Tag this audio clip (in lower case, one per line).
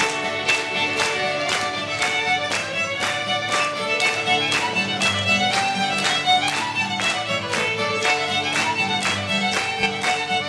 music
musical instrument
violin